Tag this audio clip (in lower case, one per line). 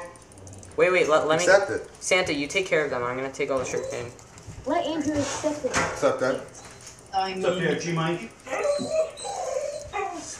dog
yip
animal
speech
pets